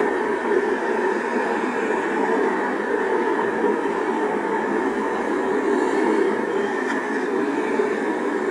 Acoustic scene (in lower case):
street